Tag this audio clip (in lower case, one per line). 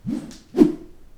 swish